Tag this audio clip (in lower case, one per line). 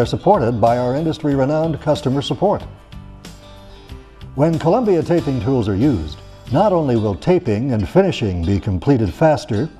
speech
music